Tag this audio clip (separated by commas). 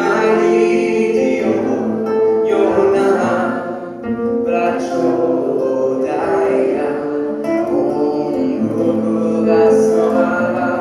Music, Vocal music